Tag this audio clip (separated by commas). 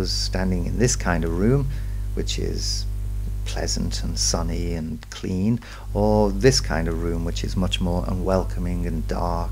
Speech, Narration